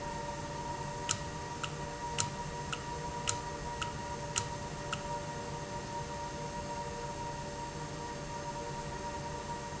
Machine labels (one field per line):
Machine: valve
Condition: normal